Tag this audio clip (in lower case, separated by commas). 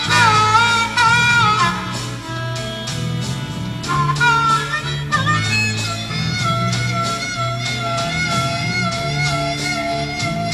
music, bagpipes